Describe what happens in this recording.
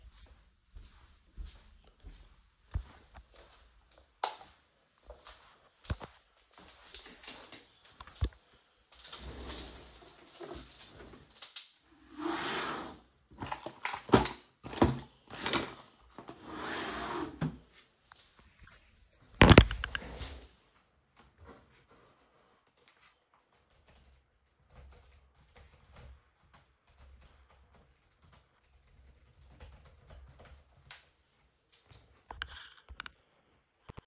I went to my home office, turn on the light, walked to my desk an sat on my chair. I opened the drawer, searched for my glasses and closed the drawer. I started typing on my laptop.